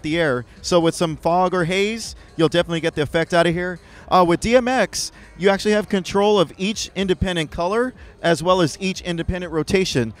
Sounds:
music, speech

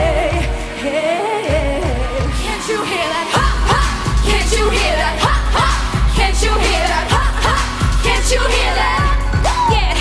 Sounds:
music, singing, music of asia, pop music

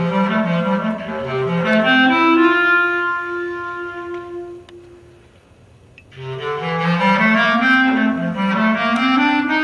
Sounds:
musical instrument, music

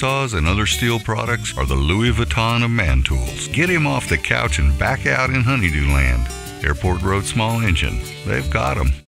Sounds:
music, speech

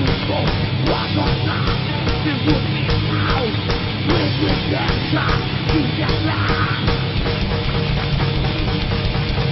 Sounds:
singing, heavy metal, music

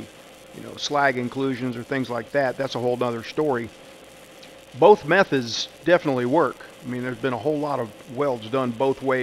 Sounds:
arc welding

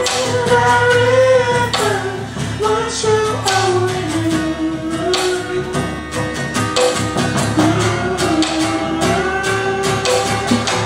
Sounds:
music

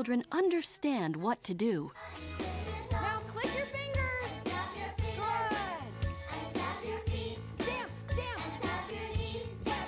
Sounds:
speech, soundtrack music, music

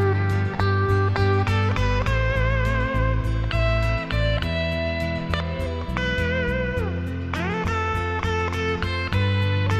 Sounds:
musical instrument, strum, music, electric guitar, guitar, plucked string instrument

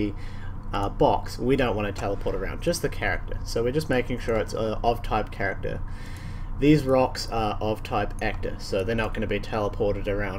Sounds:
speech

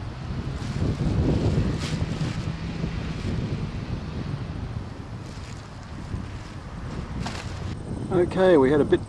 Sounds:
speech, outside, urban or man-made

